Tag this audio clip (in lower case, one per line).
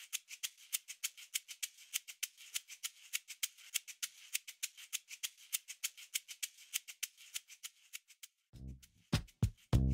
music